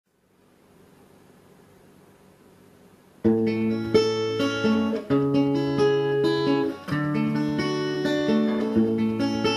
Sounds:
Strum, Acoustic guitar, Guitar, Music

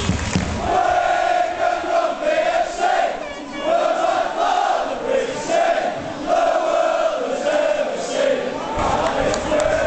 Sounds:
Choir

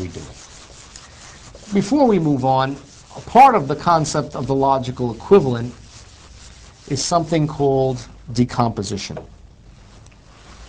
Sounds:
Rub

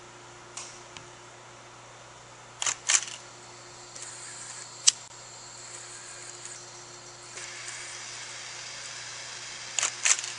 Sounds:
blowtorch igniting

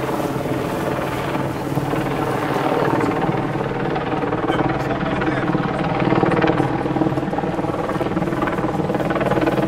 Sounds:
Vehicle, Speech

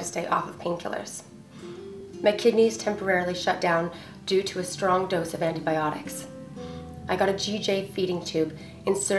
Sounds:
Music, Female speech, Speech

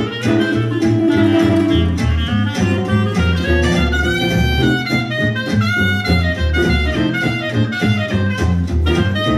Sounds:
Guitar, Acoustic guitar, Jazz, Music, Musical instrument

